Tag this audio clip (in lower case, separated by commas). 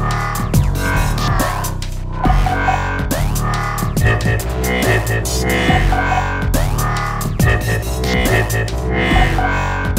dubstep, music